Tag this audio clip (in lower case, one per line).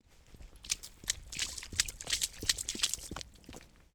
run